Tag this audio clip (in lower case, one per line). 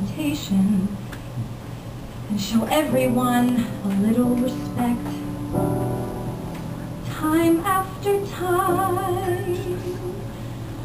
female singing
music